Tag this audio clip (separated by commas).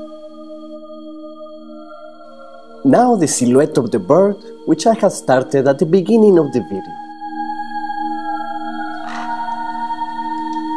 Music, Speech, Ambient music